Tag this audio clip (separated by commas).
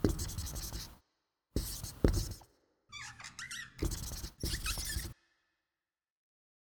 Squeak, home sounds, Writing